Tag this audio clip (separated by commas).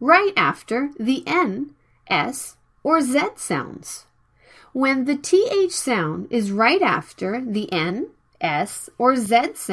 Speech